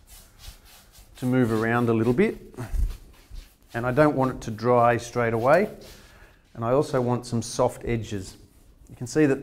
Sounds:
Speech

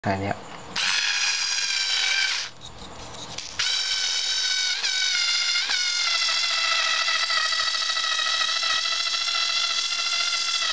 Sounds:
Speech, Drill

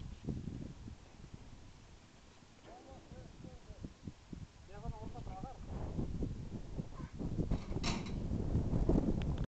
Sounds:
Speech

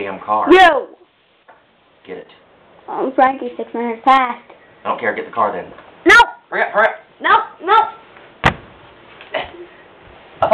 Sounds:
Speech, inside a small room

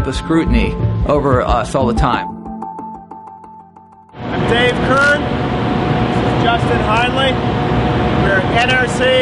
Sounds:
Speech, Music

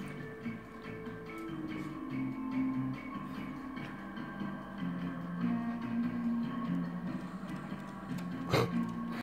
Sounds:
Music, Dog, pets, Animal

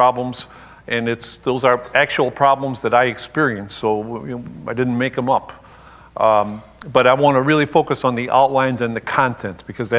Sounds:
Speech

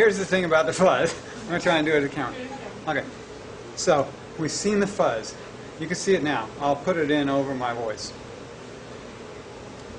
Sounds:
Male speech, Speech, Narration

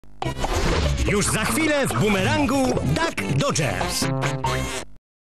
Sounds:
Speech, Music

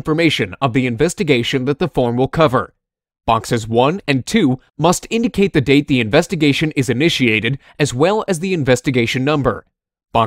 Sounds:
Speech

